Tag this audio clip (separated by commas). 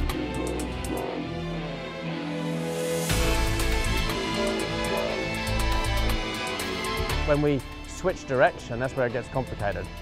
Speech, Music